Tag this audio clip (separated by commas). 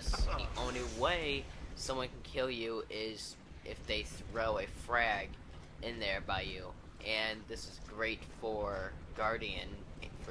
Speech